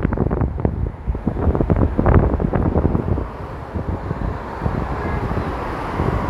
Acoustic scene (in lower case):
street